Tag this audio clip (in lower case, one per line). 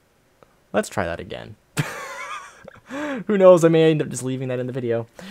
speech